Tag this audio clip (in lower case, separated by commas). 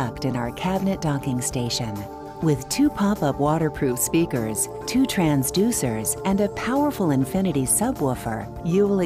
music, speech